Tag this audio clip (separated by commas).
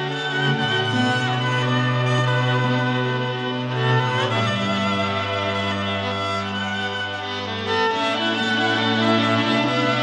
Bowed string instrument, Music, Violin